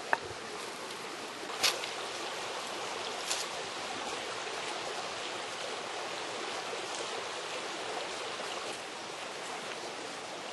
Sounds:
outside, rural or natural

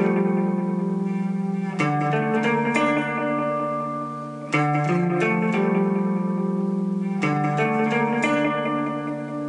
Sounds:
music, effects unit, musical instrument, distortion

